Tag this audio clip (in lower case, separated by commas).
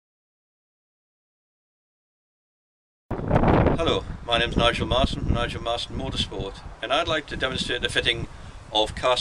wind, wind noise (microphone)